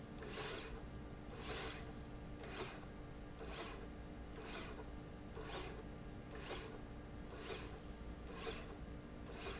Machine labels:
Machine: slide rail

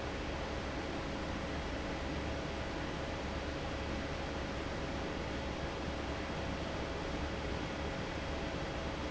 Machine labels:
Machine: fan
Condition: normal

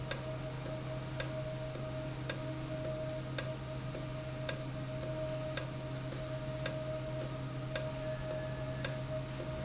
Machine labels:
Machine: valve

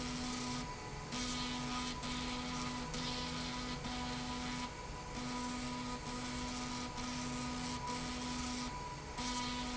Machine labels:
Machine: slide rail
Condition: abnormal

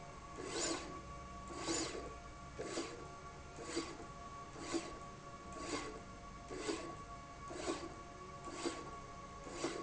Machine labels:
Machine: slide rail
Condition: abnormal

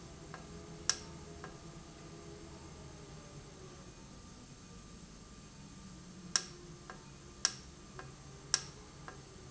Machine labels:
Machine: valve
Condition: normal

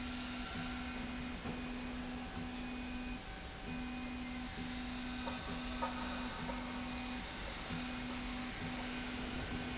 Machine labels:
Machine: slide rail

